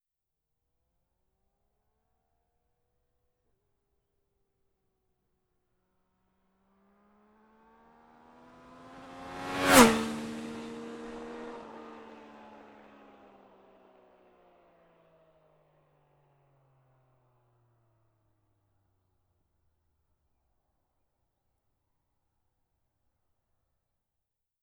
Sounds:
motor vehicle (road), motorcycle, vehicle

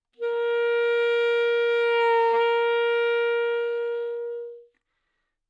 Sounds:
wind instrument, musical instrument, music

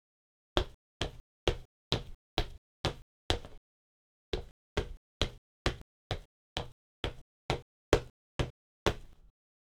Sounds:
footsteps

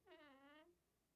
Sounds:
door, squeak, home sounds

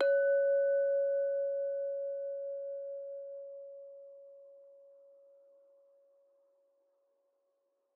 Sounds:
glass, clink

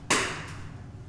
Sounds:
clapping, hands

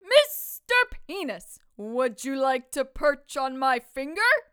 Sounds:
shout, speech, woman speaking, yell, human voice

